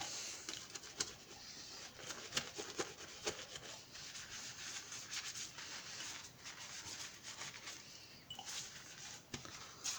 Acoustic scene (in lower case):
kitchen